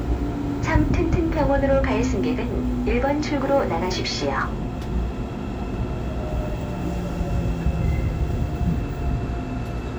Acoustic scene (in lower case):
subway train